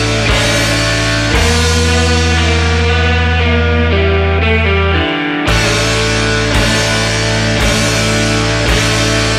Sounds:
progressive rock, music

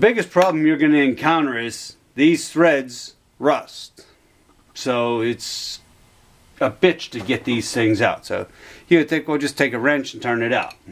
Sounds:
speech

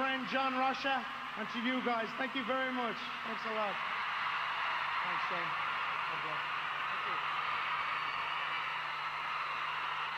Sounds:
speech

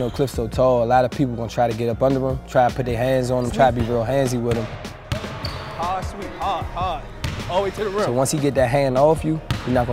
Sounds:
basketball bounce, speech, music

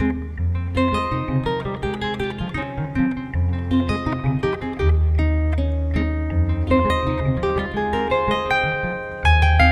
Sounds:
pizzicato, harp

